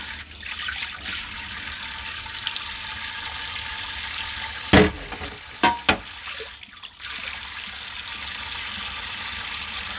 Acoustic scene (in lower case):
kitchen